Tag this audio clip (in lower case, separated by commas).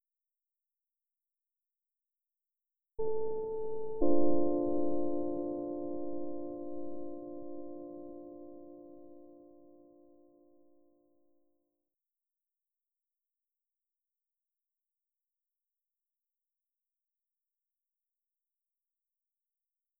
musical instrument, piano, keyboard (musical), music